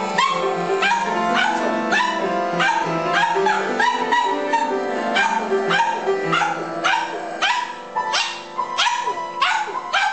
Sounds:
Domestic animals, Animal, Music, Dog

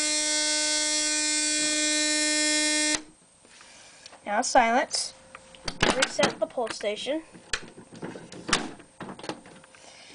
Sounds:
Speech, inside a small room, Fire alarm

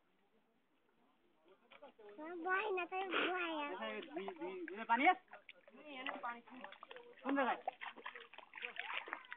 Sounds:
outside, rural or natural, Speech

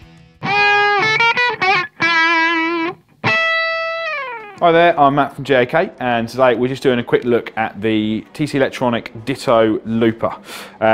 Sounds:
Music, Speech

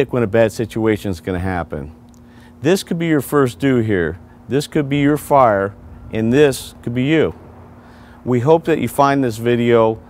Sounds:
Speech

